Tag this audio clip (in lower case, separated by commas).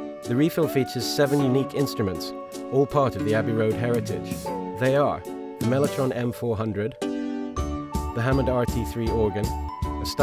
music, musical instrument, keyboard (musical), piano, speech